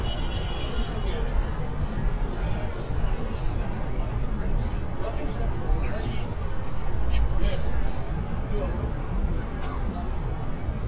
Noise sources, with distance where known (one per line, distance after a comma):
car horn, far
person or small group talking, far